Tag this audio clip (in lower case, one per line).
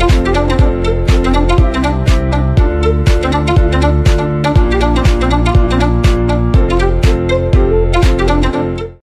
music